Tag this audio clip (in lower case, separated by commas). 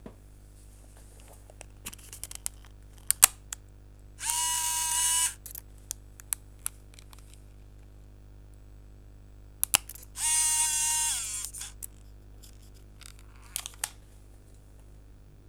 camera, mechanisms